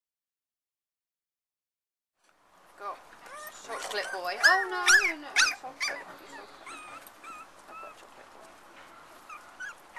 A man then a woman talking as a puppy whimpers